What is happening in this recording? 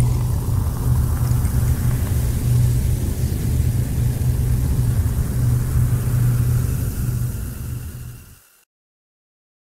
A deep tone with bubbling is ongoing